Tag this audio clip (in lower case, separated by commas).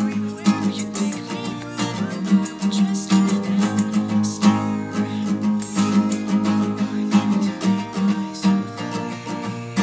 music